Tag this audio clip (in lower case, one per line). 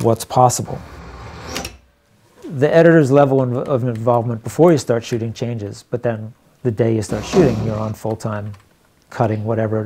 inside a small room
speech